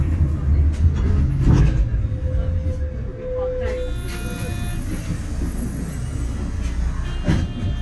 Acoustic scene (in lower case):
bus